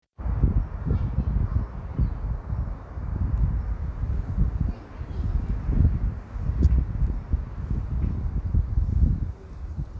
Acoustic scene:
residential area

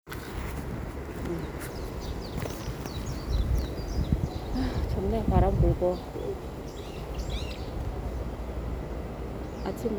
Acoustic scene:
park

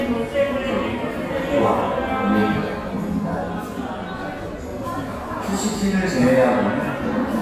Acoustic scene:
cafe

